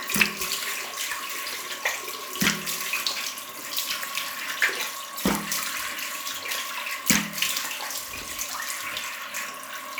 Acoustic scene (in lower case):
restroom